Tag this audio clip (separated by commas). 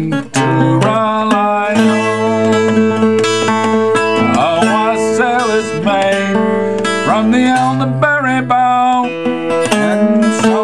Plucked string instrument, Guitar, Singing, Music, Musical instrument